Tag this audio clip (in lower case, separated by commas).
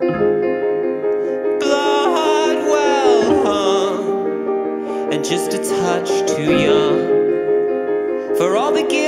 piano, music